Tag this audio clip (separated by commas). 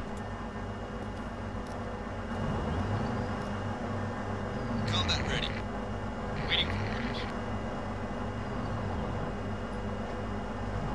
Speech